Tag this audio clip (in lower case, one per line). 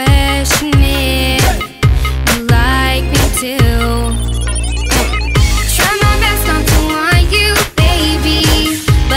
music